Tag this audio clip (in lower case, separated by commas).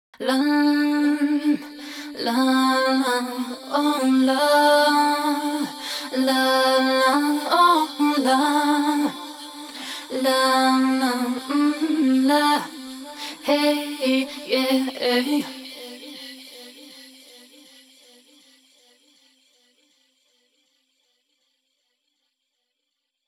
singing, female singing, human voice